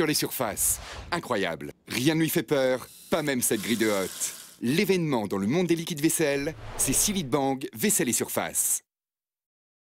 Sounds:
speech

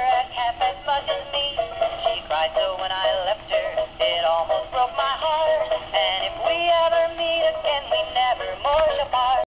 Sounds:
male singing, music, synthetic singing

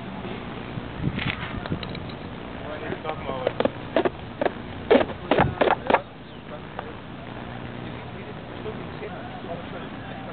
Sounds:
speech

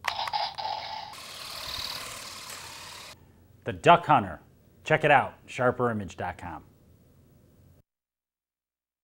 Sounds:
speech

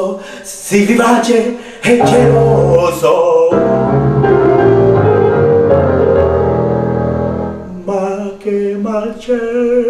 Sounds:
music

